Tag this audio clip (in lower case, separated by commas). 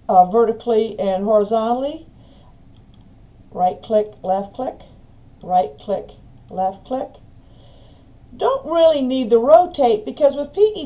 inside a small room, speech